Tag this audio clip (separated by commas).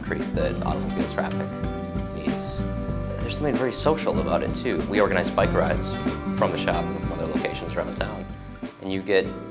Music, Speech